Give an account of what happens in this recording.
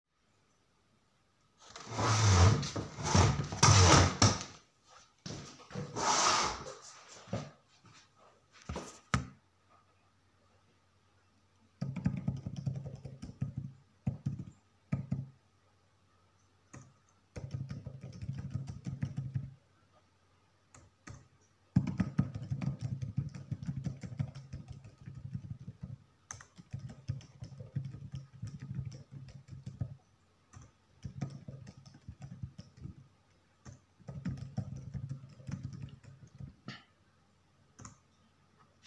I took the chair to seat, started typing on laptop keyboard.